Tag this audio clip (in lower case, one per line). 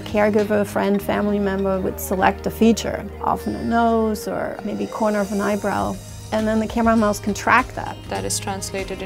speech
music